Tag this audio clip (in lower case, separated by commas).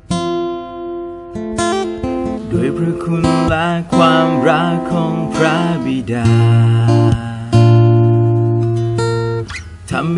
music, strum, acoustic guitar, plucked string instrument, guitar, musical instrument